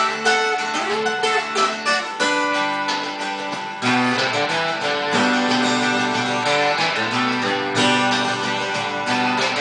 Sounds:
rock and roll
music

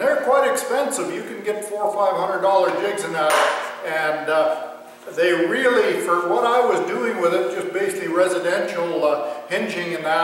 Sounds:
speech

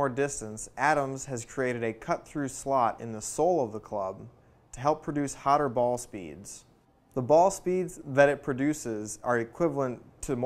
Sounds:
speech

